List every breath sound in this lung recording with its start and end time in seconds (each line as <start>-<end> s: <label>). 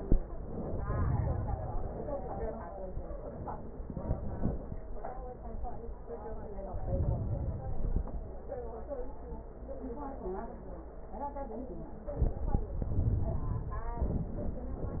0.39-1.89 s: inhalation
1.90-3.02 s: exhalation
6.57-7.50 s: inhalation
7.51-8.45 s: exhalation